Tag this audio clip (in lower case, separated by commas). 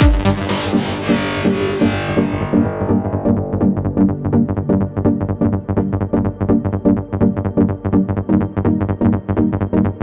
music